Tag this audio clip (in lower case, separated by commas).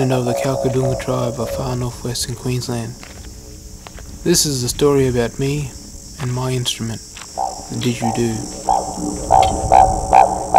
didgeridoo, speech, music